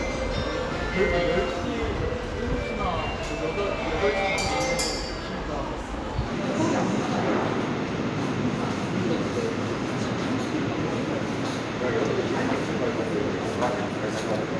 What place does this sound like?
subway station